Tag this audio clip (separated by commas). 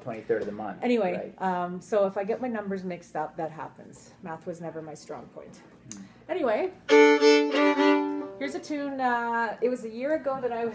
Musical instrument, fiddle, Music, Speech